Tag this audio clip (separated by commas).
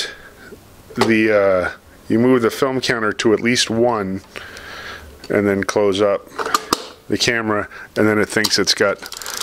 Speech